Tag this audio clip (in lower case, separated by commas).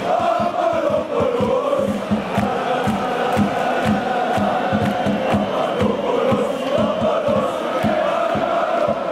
music